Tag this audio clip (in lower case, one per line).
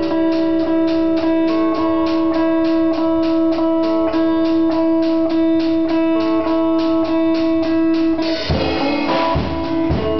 music
musical instrument
guitar
strum
plucked string instrument